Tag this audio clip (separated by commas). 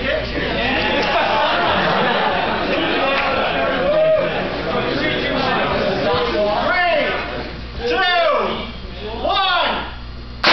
Speech